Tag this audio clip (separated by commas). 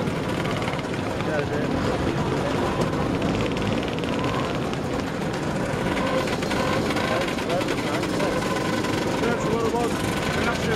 Vehicle, Motorcycle